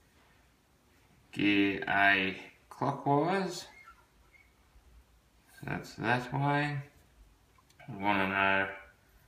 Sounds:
Speech

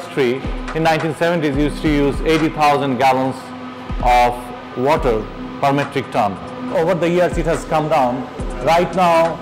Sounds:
Music, Speech

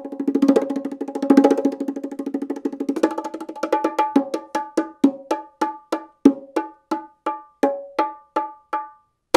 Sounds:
playing bongo

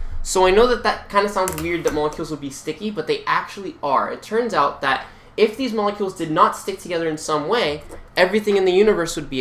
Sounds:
Speech

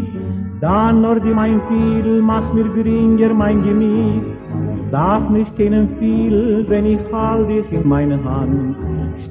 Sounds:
Violin, Music, Musical instrument

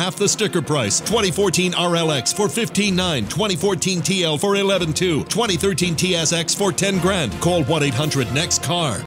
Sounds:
Music, Speech

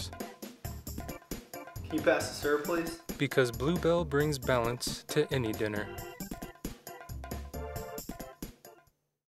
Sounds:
Jingle bell, Music, Speech

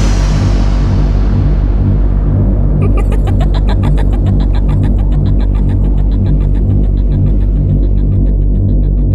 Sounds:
Music

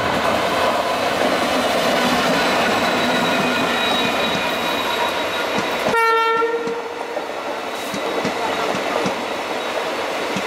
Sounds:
Railroad car, Vehicle, Train, Rail transport

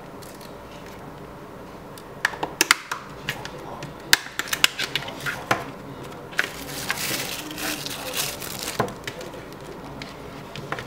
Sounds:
Speech

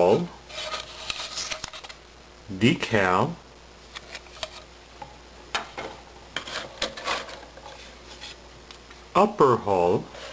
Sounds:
Speech

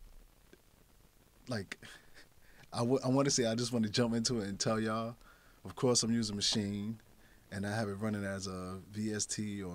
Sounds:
Speech

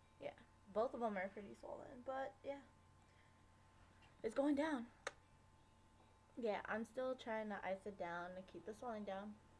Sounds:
Speech, kid speaking

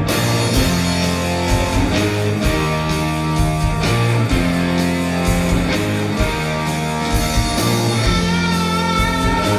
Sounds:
Music

